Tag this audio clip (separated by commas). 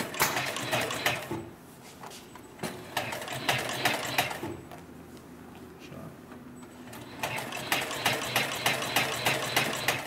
using sewing machines